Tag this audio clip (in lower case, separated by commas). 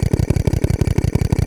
tools, power tool, drill